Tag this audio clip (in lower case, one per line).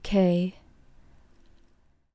human voice